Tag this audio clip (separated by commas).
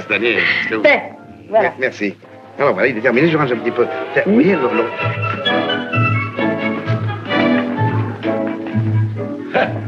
Music, Speech